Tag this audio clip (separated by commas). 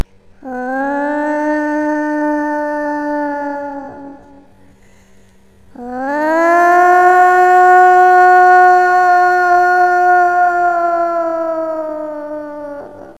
Human voice